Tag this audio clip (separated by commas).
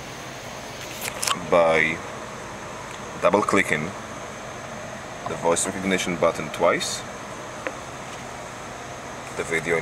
Vehicle, Speech